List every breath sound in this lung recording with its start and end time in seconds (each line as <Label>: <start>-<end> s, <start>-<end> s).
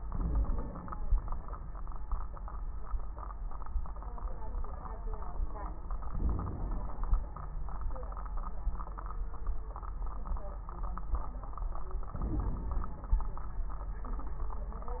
Inhalation: 0.00-0.96 s, 6.12-6.96 s, 12.13-13.19 s
Crackles: 0.00-0.96 s, 6.12-6.96 s, 12.13-13.19 s